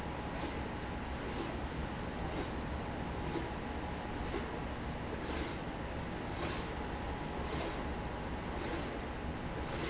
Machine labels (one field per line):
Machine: slide rail